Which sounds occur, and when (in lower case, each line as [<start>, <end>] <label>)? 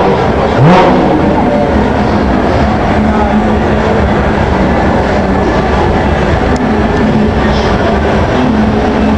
[0.00, 9.15] car
[0.00, 9.15] speech babble
[0.41, 0.96] accelerating
[6.50, 6.57] tick
[6.91, 6.97] tick